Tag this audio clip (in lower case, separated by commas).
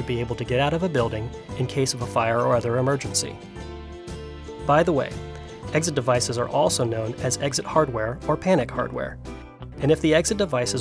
speech, music